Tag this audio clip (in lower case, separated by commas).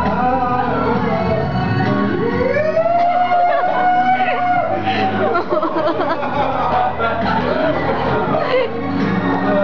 music, male singing